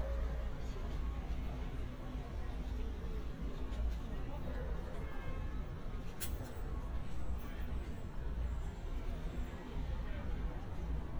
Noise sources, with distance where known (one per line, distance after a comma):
car horn, far
person or small group talking, far